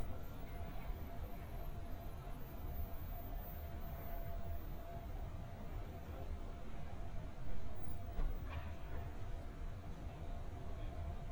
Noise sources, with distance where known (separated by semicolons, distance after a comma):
background noise